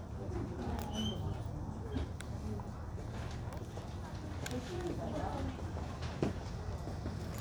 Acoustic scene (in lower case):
crowded indoor space